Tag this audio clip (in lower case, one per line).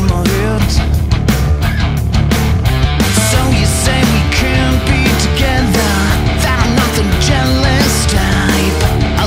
music